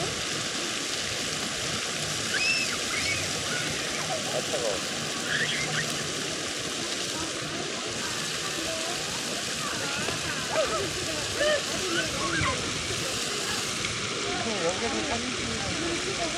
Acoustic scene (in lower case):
park